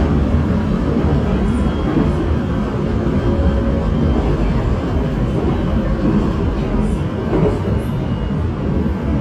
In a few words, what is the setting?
subway train